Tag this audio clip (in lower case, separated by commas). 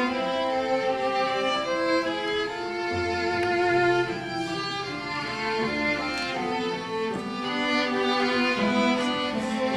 string section, orchestra